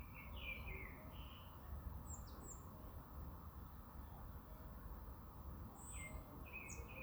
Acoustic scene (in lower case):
park